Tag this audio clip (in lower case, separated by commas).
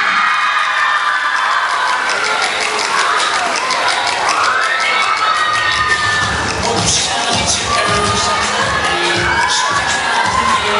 hip hop music, music